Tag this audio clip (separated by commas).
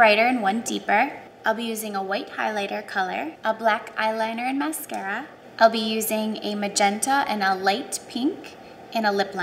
Speech